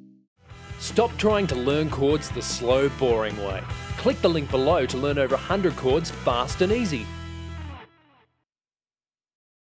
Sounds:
plucked string instrument, speech, guitar, acoustic guitar, musical instrument, music

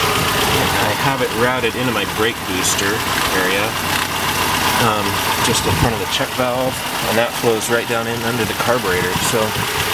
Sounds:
car, engine, speech, vehicle

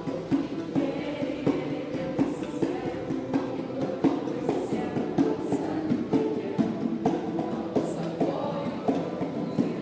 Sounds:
music, ukulele

